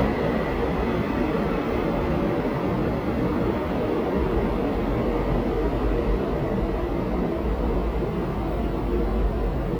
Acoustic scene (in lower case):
subway station